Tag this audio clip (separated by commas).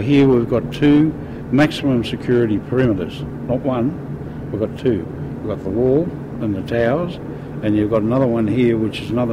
Speech